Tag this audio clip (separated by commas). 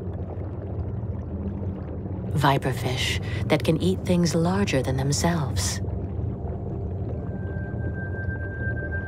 Speech, Music